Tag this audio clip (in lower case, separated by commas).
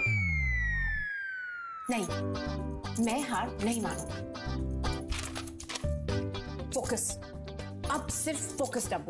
inside a small room, music, speech